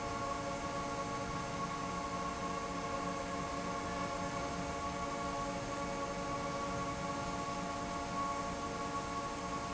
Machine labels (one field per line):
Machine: fan